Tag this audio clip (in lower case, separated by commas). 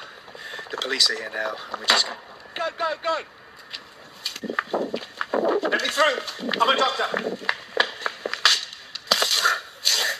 speech